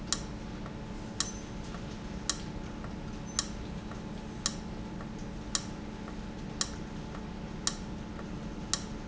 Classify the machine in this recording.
valve